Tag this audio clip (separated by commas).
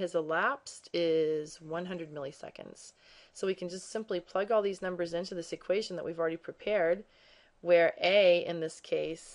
Narration